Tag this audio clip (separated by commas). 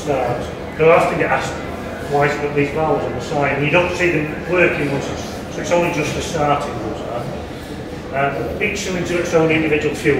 Speech